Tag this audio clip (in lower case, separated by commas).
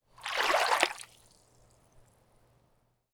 liquid, water, splash